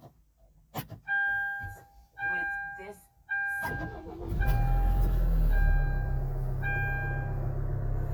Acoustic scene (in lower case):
car